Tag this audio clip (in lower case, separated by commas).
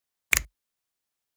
hands, finger snapping